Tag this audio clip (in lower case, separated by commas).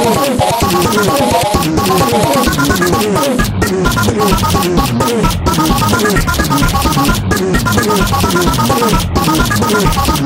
music